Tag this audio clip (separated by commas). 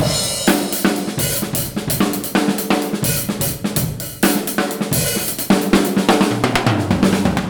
Music, Percussion, Drum, Drum kit, Musical instrument